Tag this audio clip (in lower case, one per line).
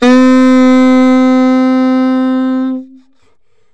music
musical instrument
wind instrument